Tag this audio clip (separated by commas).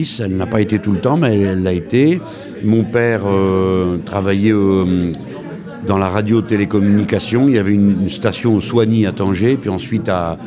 Speech